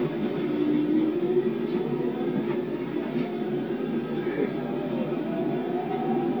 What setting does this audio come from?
subway train